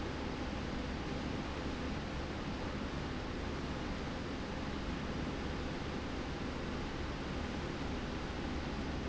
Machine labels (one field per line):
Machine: slide rail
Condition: normal